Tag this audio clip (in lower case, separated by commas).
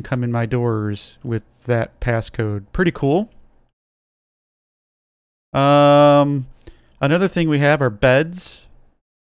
speech